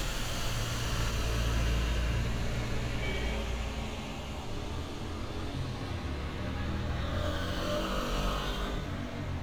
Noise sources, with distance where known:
medium-sounding engine; car horn

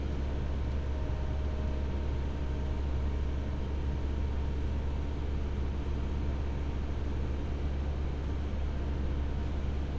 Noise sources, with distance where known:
engine of unclear size, near

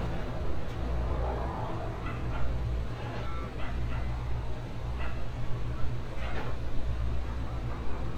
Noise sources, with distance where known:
engine of unclear size; dog barking or whining, far

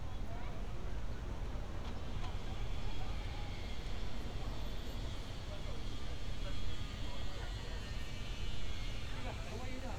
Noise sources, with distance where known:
person or small group talking

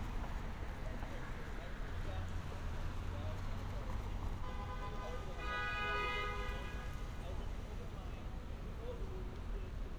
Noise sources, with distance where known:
medium-sounding engine, far; car horn

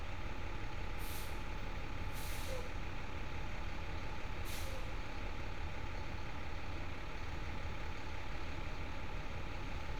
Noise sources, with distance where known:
large-sounding engine, near

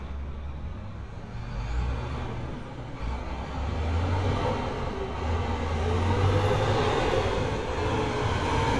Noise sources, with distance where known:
large-sounding engine, near

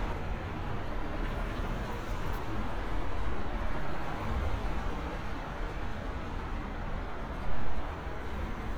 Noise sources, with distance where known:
medium-sounding engine, near

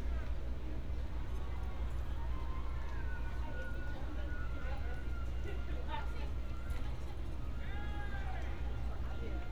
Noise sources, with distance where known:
person or small group talking, near

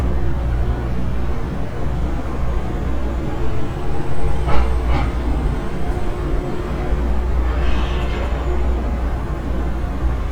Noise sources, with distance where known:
large-sounding engine

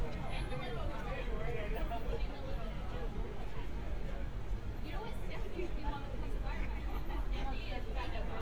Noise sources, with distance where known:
person or small group talking, near

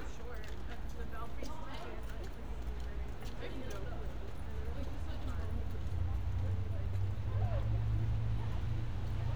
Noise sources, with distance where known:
person or small group talking

